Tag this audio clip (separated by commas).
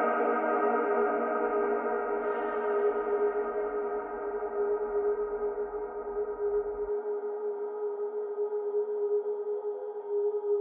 Gong